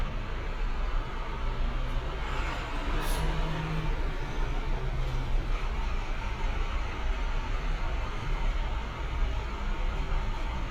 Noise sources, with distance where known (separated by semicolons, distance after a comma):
engine of unclear size, far